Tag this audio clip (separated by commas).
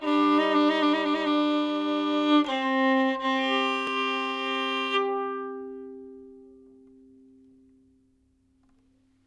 Music, Bowed string instrument, Musical instrument